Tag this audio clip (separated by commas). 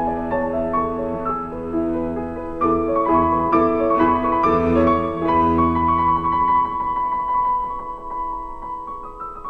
Music